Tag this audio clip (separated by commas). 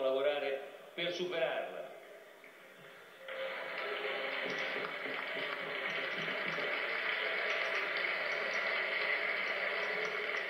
Speech